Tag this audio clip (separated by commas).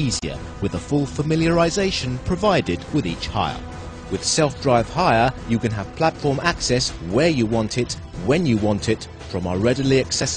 Music, Speech